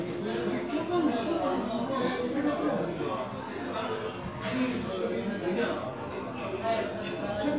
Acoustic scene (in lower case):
crowded indoor space